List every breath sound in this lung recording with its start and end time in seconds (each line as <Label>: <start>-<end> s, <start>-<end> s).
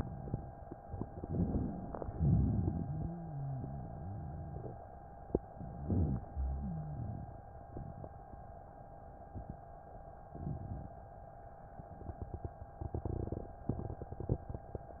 Inhalation: 1.16-1.99 s
Exhalation: 1.99-3.07 s
Rhonchi: 2.13-4.71 s, 5.77-7.21 s